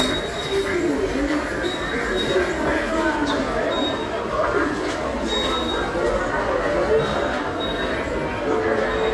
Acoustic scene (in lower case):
subway station